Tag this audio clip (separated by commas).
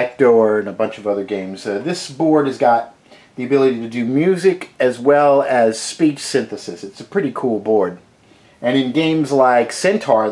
Speech